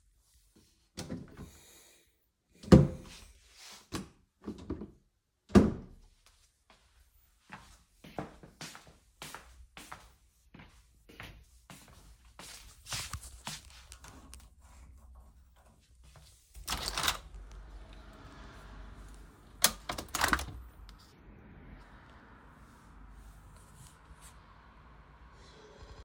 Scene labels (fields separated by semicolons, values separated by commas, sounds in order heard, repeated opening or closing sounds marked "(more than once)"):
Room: living room; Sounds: wardrobe or drawer (more than once), footsteps, window (more than once)